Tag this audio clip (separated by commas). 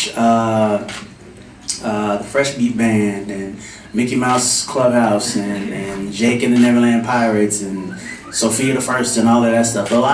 Speech